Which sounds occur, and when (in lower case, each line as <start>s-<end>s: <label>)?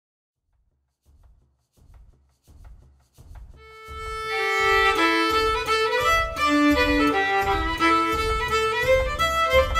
0.3s-9.7s: music